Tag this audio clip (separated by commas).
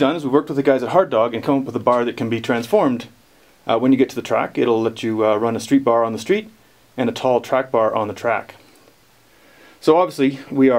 Speech